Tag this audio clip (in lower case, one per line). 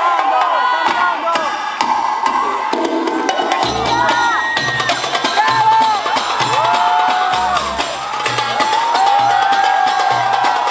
people crowd
cheering
crowd